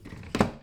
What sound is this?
drawer closing